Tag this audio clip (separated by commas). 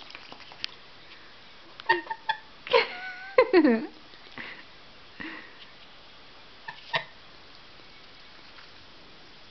Honk